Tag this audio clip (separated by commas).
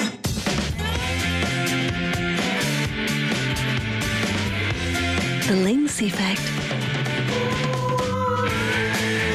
Music, Speech